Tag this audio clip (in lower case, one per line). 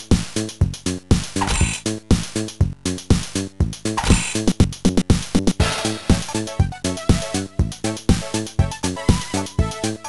music